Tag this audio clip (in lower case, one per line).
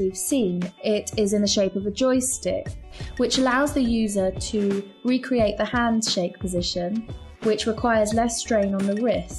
speech
music